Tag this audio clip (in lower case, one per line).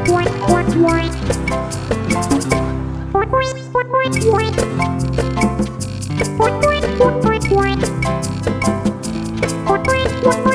music
christmas music